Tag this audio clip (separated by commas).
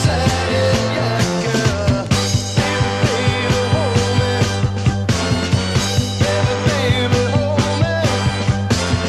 Psychedelic rock, Independent music, Song, Music